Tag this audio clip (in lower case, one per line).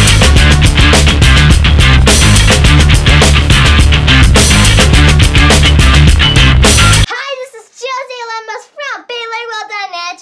kid speaking